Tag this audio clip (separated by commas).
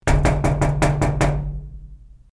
Door, home sounds, Knock